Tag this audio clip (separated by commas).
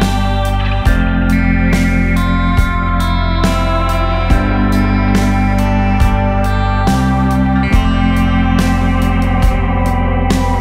Music